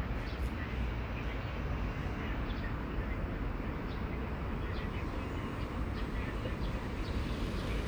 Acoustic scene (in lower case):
street